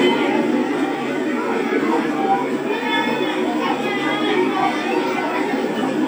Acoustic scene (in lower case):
park